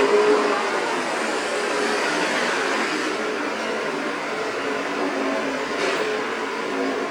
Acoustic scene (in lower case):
street